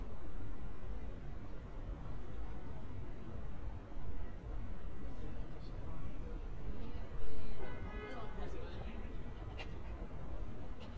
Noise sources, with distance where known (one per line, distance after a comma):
car horn, far
person or small group talking